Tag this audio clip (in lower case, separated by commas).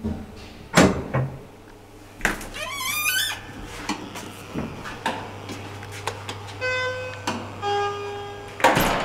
inside a small room, sliding door